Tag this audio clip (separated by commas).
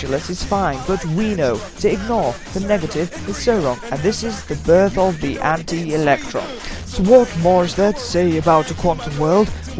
Music, Speech